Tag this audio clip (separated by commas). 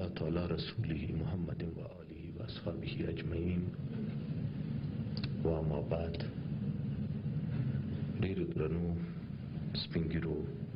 Narration, Speech, man speaking